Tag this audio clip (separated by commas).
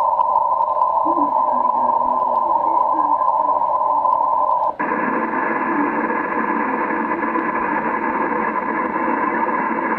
Radio